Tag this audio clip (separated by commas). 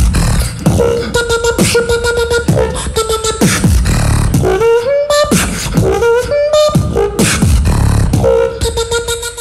beat boxing